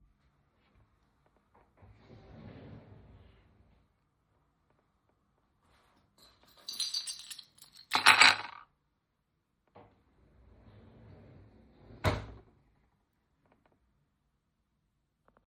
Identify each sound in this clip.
wardrobe or drawer, keys